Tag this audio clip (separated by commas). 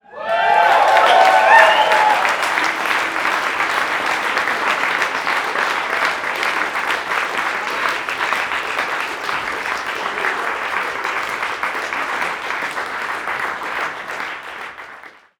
Human group actions, Cheering, Applause